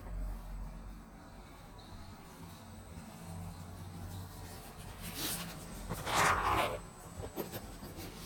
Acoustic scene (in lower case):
elevator